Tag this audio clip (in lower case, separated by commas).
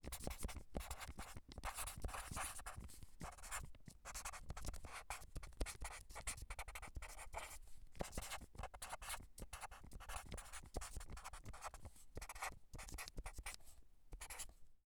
home sounds, writing